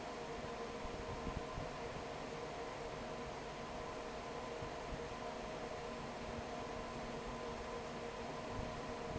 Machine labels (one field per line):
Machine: fan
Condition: normal